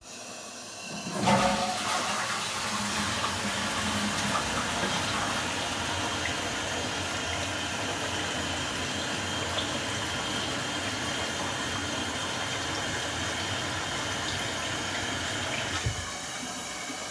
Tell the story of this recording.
I flushed the toilet and then turned on the water tap while holding the phone.